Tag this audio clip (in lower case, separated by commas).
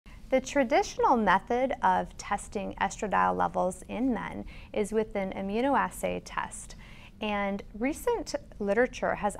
speech